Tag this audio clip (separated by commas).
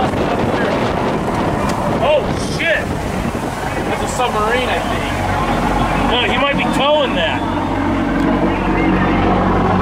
Speech